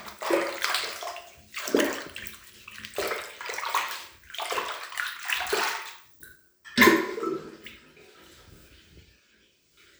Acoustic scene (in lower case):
restroom